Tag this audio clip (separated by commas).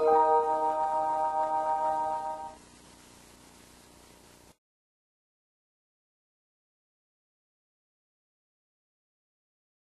Tick-tock